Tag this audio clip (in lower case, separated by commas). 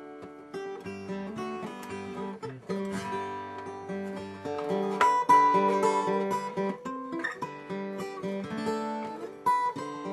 music, strum, guitar, musical instrument, plucked string instrument, acoustic guitar